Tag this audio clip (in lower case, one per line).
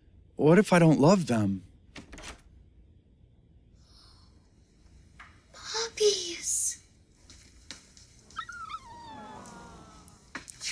dog